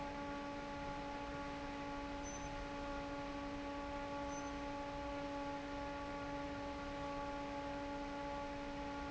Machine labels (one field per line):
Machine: fan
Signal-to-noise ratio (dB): 6 dB